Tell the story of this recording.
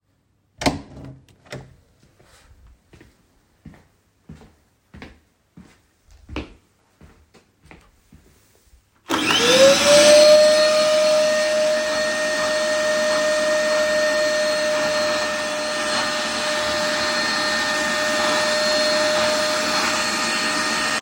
I opened the door,walk in and turned on the vacuum cleaner and vacuumed the floor.